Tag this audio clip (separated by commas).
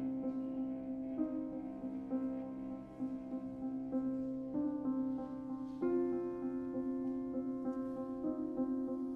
Music